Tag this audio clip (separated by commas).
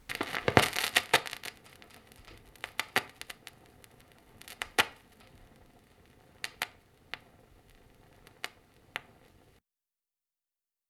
Crackle